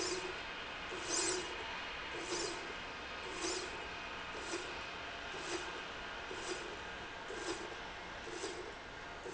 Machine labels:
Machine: slide rail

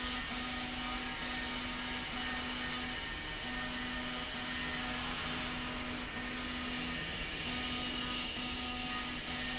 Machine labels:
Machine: slide rail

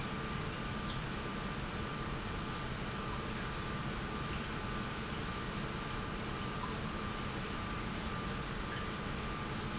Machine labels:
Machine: pump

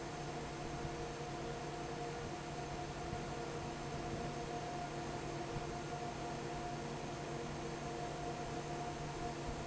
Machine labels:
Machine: fan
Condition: normal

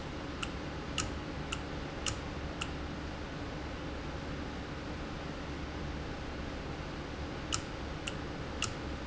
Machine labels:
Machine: valve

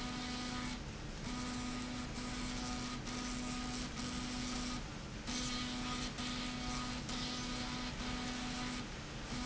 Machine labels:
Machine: slide rail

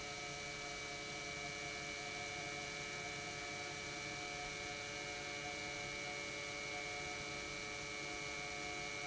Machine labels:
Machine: pump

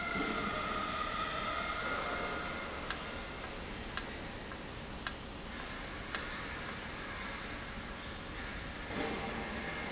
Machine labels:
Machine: valve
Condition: normal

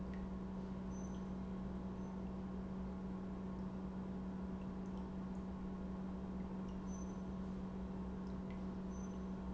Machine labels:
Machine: pump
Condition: normal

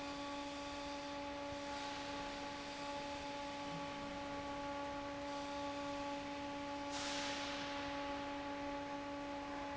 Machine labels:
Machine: fan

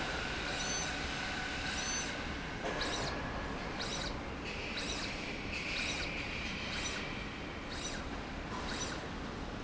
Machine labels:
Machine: slide rail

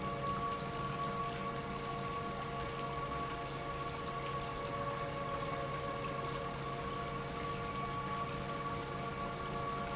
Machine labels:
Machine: pump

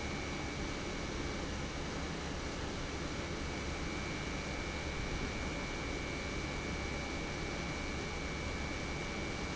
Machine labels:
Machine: pump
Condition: normal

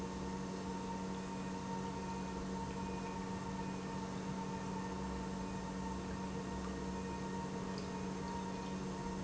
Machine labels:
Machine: pump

